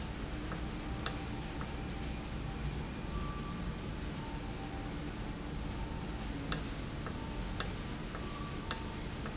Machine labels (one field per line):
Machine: valve